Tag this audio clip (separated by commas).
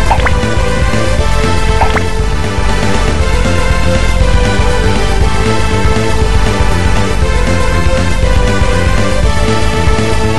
Video game music